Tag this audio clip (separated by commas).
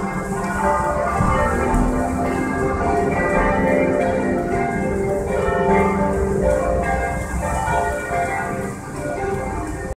Change ringing (campanology)